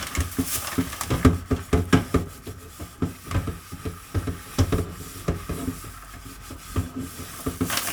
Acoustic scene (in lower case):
kitchen